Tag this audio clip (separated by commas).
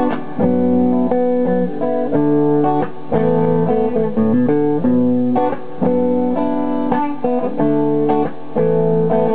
Electronic organ, Music